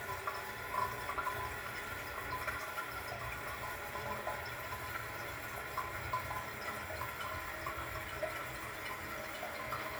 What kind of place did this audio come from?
restroom